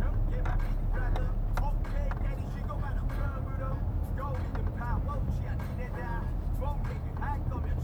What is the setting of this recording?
car